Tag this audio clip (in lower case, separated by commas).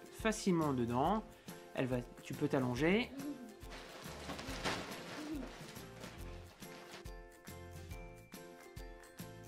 speech, music